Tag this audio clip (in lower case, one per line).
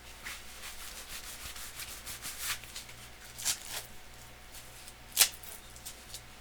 home sounds